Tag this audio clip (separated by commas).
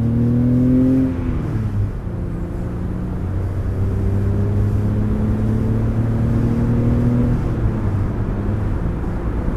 Vehicle, vroom